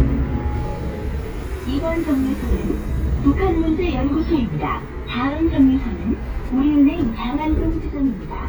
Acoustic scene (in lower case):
bus